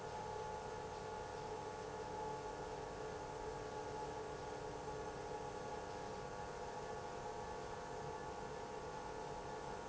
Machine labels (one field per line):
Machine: pump